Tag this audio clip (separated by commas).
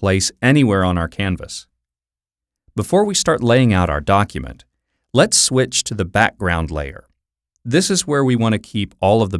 Speech